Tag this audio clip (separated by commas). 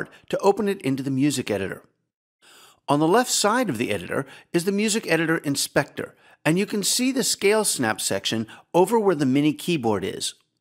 Speech